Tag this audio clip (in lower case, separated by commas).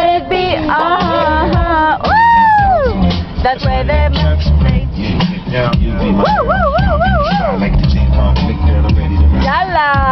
speech, female singing, male singing, music